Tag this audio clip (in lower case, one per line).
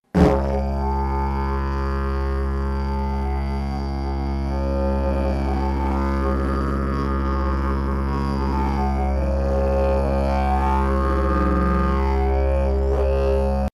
musical instrument
music